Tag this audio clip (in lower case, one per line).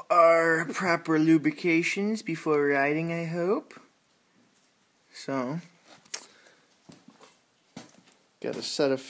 speech